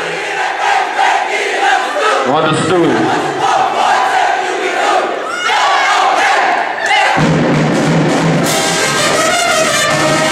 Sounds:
people crowd, crowd

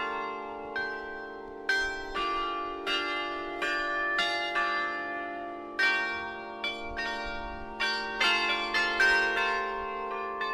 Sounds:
wind chime

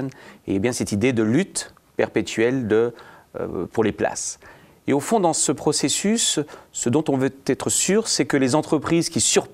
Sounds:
speech

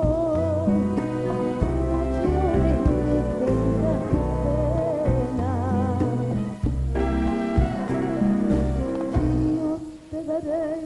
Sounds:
singing

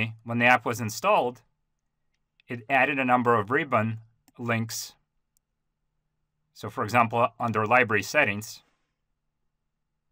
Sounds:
speech

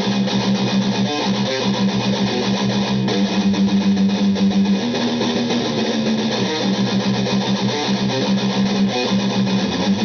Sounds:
musical instrument, music, bass guitar, acoustic guitar, guitar, strum, plucked string instrument

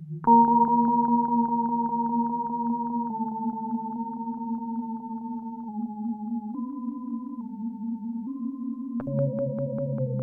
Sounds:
music, echo

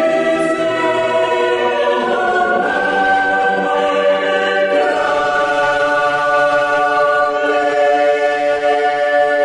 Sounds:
chant

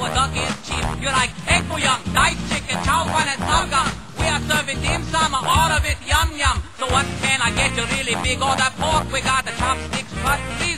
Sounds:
music

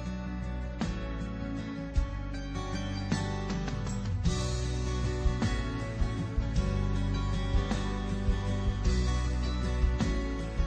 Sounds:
music

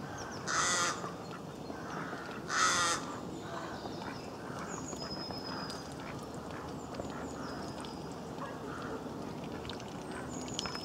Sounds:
duck quacking

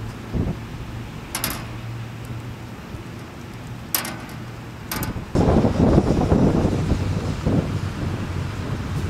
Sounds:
wind noise (microphone), wind

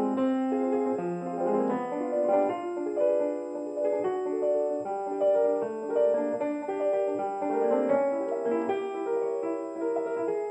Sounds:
music

